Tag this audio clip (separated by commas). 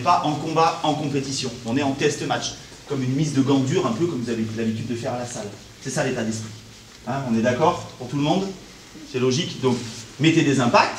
Speech